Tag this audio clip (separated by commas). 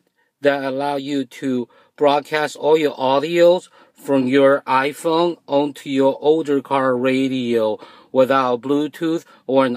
Speech